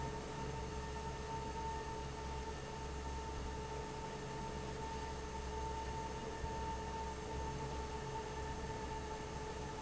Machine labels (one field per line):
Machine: fan